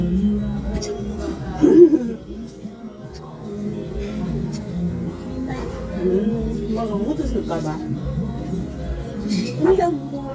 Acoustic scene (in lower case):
restaurant